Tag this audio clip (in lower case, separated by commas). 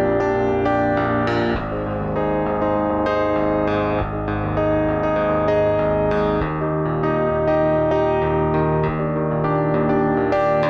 music, keyboard (musical)